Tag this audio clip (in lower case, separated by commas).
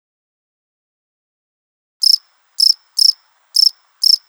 animal, wild animals, insect, cricket